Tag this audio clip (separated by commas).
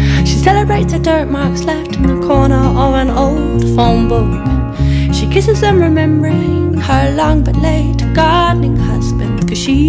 Music